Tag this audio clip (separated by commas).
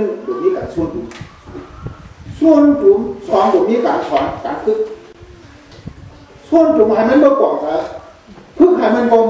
Male speech, Speech, monologue